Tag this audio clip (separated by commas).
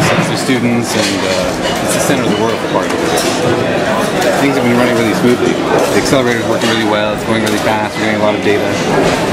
Speech, inside a public space